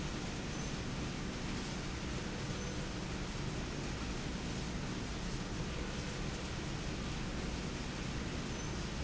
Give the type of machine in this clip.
slide rail